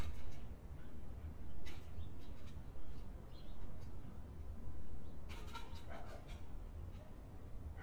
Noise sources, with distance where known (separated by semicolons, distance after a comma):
dog barking or whining, near